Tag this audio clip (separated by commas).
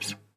Musical instrument, Plucked string instrument, Music, Acoustic guitar, Guitar